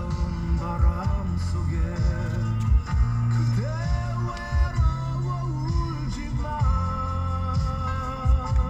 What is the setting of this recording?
car